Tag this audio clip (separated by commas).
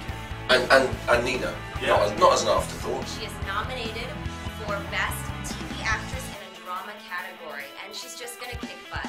Music, Speech